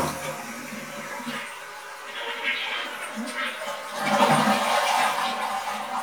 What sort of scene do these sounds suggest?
restroom